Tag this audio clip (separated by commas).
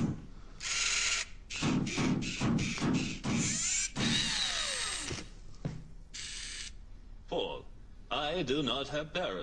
Speech